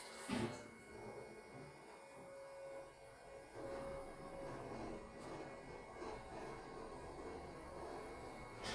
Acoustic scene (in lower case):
elevator